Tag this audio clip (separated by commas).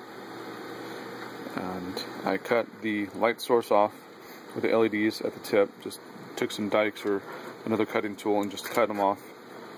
Speech